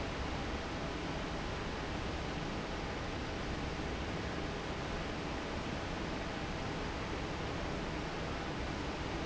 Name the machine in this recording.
fan